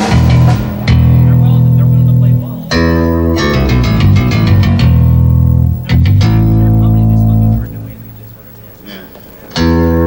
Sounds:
music, double bass, guitar, plucked string instrument

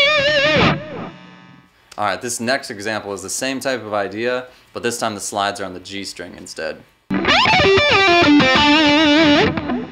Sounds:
speech, music, electric guitar, musical instrument, guitar, strum, plucked string instrument

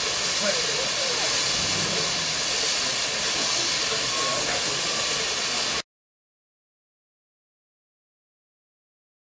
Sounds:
speech, steam, engine, vehicle

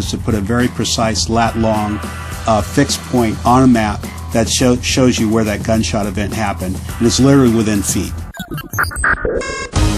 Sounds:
speech, music

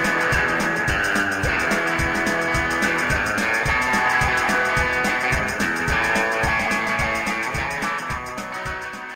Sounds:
music, plucked string instrument, acoustic guitar, bass guitar, guitar, musical instrument

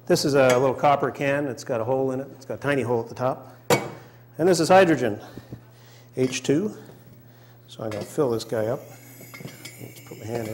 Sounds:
speech

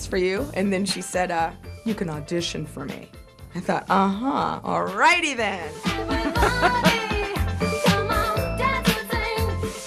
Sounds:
music

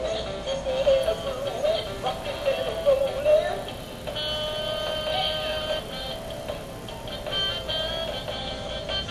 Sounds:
music

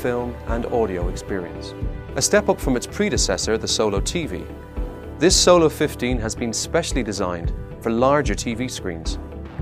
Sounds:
speech, music

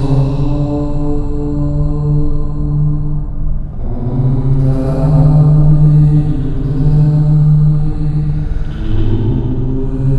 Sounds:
chant, mantra, vocal music

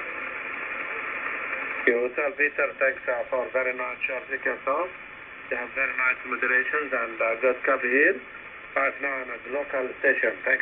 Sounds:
speech, radio

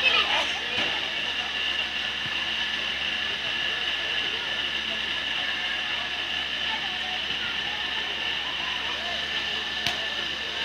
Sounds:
speech

